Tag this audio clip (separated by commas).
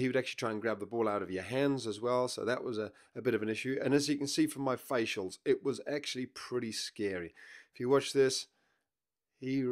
Speech